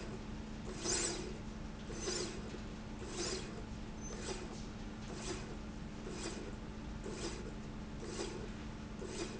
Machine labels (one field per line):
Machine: slide rail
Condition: normal